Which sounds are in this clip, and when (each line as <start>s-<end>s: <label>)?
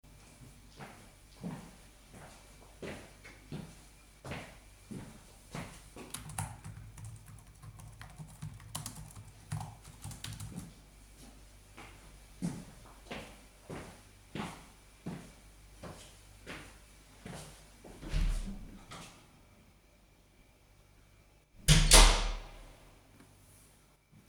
0.5s-6.1s: footsteps
5.9s-10.8s: keyboard typing
10.4s-18.0s: footsteps
18.1s-19.1s: door
21.7s-22.5s: door